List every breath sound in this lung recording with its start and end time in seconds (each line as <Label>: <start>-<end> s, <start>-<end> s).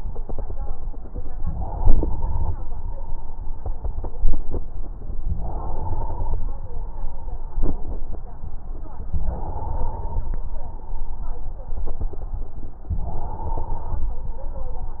Inhalation: 1.49-2.53 s, 5.37-6.41 s, 9.27-10.31 s, 13.01-14.05 s